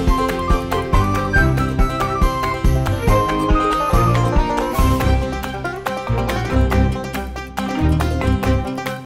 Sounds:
Music

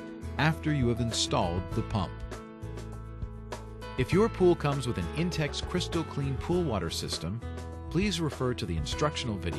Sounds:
Speech, Music

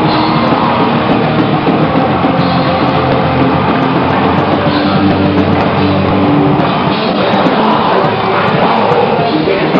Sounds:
Music

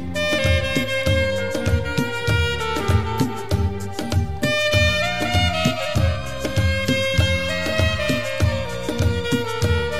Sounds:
playing saxophone

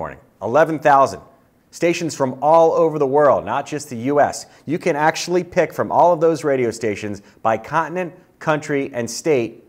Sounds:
Speech

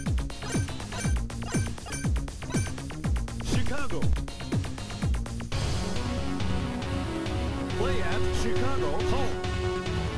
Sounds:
Speech, Music

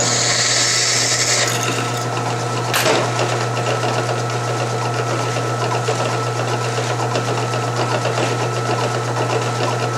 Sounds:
Tools, Drill, Power tool

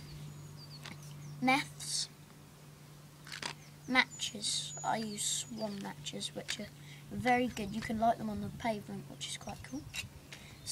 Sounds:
Speech

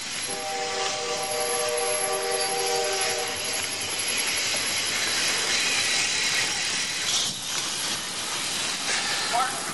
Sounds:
Run, Speech, outside, urban or man-made

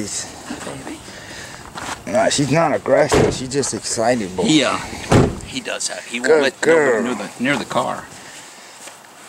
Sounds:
Speech

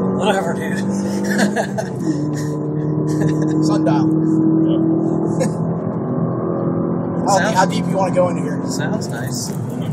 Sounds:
Speech

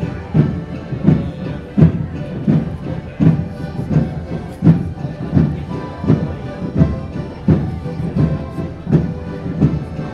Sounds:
Music, Speech, Theme music

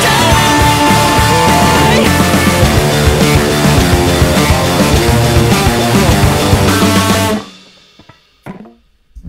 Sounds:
inside a small room, Guitar, Musical instrument, Music, Plucked string instrument

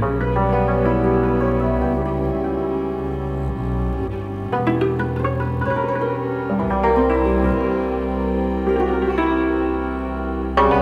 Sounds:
Music

